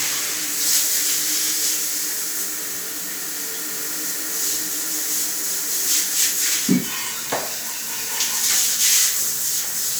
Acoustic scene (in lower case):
restroom